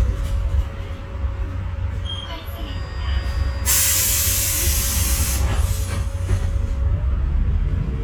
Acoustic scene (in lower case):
bus